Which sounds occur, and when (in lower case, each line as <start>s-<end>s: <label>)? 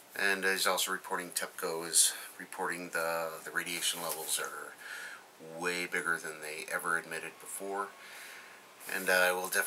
0.0s-9.6s: background noise
0.1s-1.9s: male speech
2.0s-2.3s: breathing
2.4s-4.7s: male speech
4.7s-5.3s: breathing
5.4s-7.9s: male speech
8.0s-8.8s: breathing
8.9s-9.6s: male speech